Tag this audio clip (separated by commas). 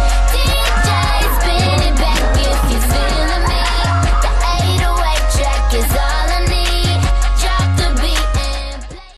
Speech, Music